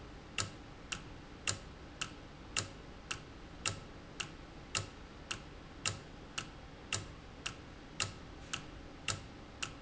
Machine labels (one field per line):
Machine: valve